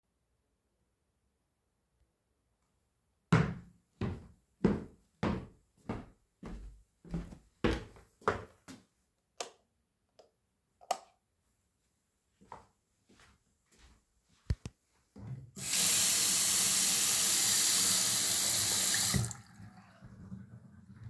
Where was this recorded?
hallway, bathroom